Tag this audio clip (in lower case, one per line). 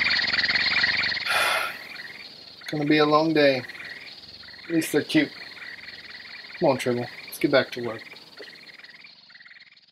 inside a small room
speech